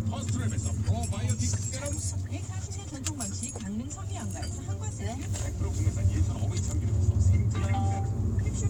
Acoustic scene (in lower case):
car